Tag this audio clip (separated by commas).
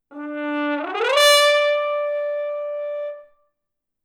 Brass instrument, Musical instrument, Music